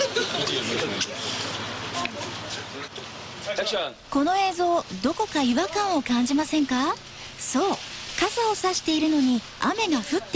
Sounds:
speech

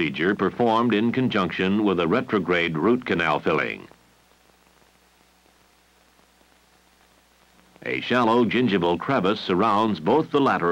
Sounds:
speech

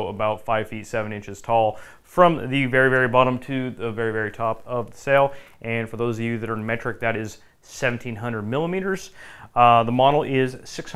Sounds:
speech

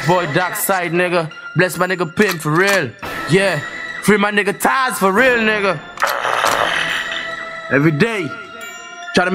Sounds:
music

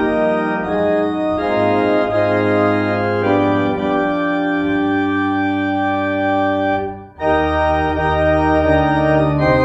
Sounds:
playing electronic organ

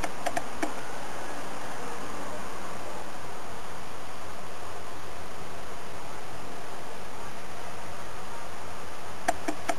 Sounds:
vehicle

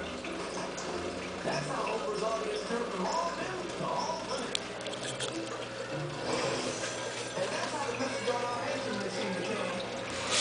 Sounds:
speech

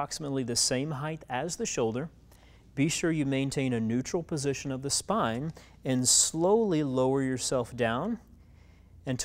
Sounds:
speech

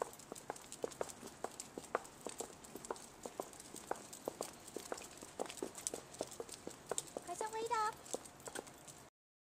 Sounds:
footsteps
speech

